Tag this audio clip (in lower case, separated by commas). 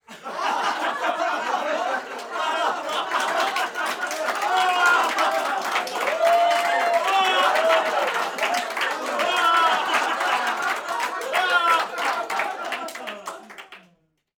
applause, human group actions